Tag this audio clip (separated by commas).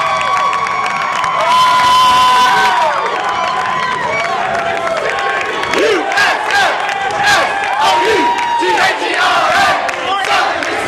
Cheering, Crowd